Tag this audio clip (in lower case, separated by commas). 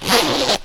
home sounds, zipper (clothing)